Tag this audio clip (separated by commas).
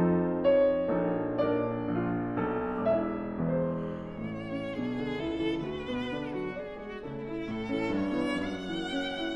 Violin, Musical instrument, Music